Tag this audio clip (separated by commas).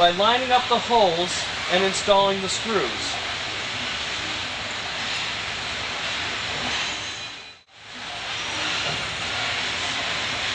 Speech, inside a small room